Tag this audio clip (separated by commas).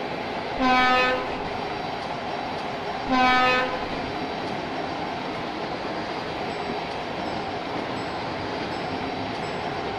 Vehicle, Train